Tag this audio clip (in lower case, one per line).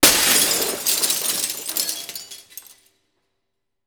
glass
shatter